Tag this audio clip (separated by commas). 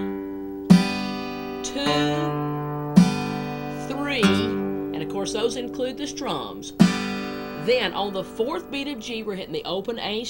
Music, Guitar, Plucked string instrument, Speech, Strum, Musical instrument